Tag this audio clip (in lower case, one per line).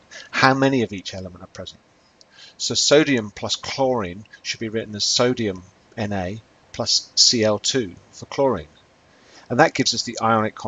speech